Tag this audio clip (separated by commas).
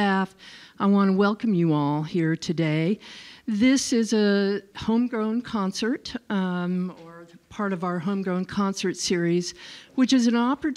Speech